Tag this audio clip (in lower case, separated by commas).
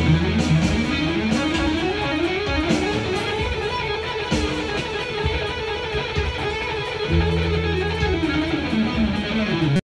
plucked string instrument, music, guitar, musical instrument